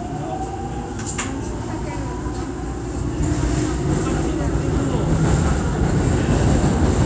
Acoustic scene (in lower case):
subway train